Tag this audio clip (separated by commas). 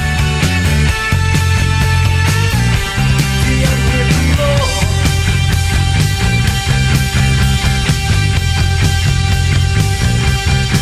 Music, Progressive rock